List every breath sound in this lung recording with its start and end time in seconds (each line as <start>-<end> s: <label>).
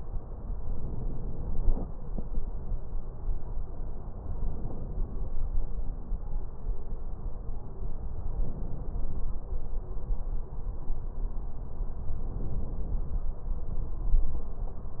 0.56-1.96 s: inhalation
4.09-5.33 s: inhalation
8.27-9.40 s: inhalation
12.16-13.30 s: inhalation